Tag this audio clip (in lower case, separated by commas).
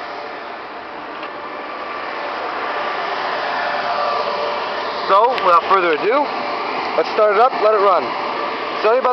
speech, vehicle, car